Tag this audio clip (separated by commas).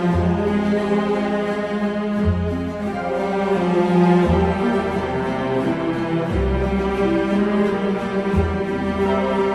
Soundtrack music, Music